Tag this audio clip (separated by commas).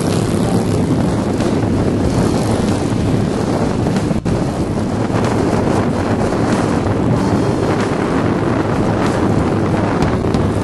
Vehicle, Motorcycle, Music